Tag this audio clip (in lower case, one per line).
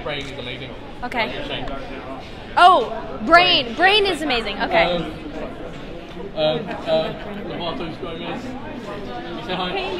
speech